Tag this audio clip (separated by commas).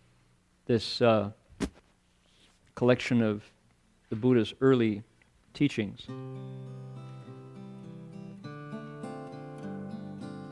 Music, Speech